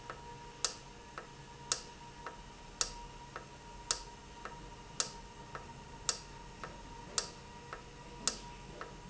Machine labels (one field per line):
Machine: valve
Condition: normal